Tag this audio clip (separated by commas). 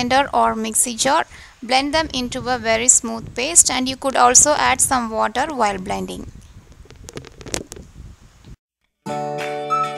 Music, inside a small room, Speech